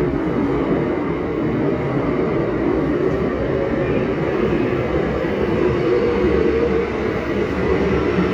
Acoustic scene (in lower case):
subway station